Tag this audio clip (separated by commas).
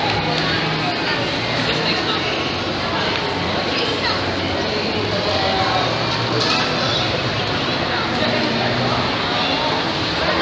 Speech